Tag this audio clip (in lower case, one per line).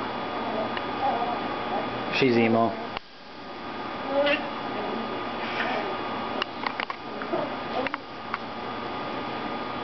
speech
yip